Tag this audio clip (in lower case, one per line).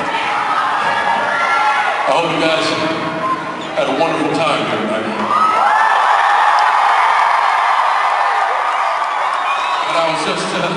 narration
man speaking
speech